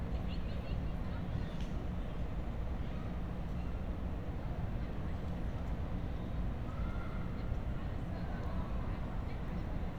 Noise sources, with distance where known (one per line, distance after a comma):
person or small group talking, far